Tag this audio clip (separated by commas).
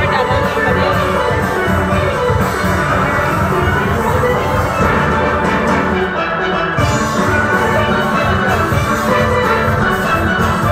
Steelpan, Music, Drum